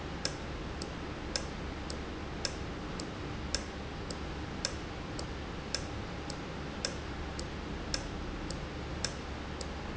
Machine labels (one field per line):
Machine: valve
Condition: normal